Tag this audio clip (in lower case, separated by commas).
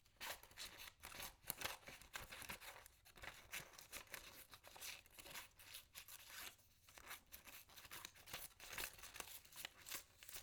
scissors, domestic sounds